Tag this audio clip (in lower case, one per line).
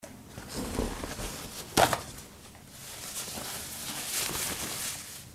tearing